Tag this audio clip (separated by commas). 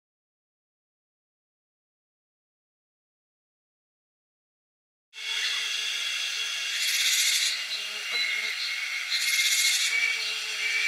bird squawking